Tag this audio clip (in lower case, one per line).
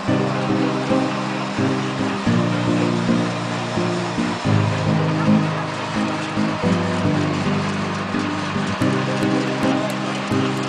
music